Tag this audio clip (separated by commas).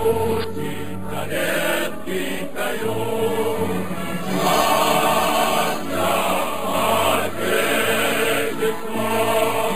Music, Choir